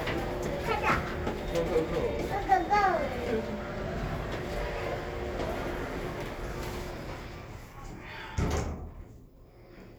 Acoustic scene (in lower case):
elevator